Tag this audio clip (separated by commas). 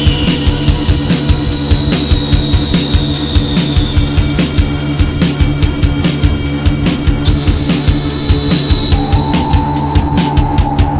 Music, Jazz